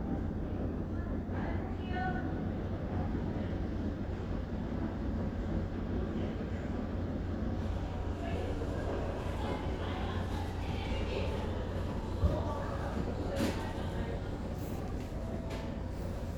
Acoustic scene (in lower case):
crowded indoor space